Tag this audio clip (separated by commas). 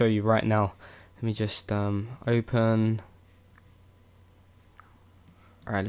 Speech